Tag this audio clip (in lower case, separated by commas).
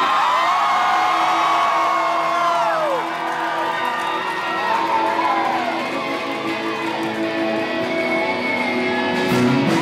music